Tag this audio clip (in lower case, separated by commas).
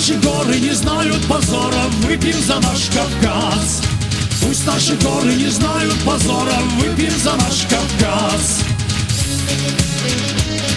funk, music